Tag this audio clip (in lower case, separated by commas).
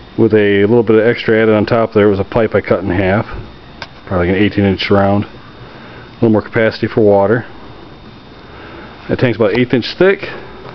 speech